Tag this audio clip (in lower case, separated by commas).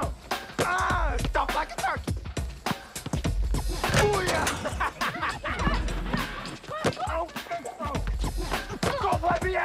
music, speech